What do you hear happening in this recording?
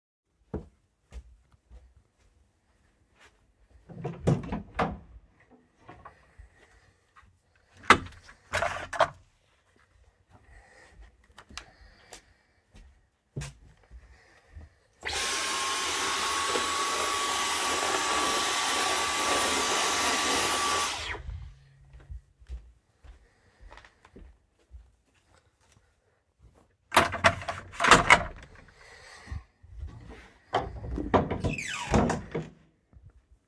I walked from the hallway to the utility closet, opened the door, took the vacuum cleaner off it's holder, walked back in the hallway and vaccumed some dirt away. Then i walked back into the utility closet, put the vacuum clean back in it's holder and closed the door.